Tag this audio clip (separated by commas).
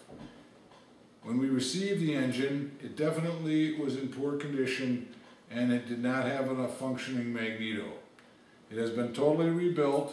Speech